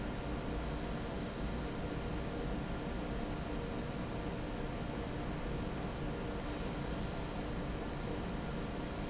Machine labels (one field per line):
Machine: fan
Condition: normal